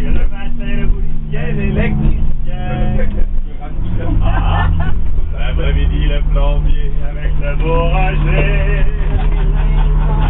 A man sings and people laugh and talk while a vehicle operates in the background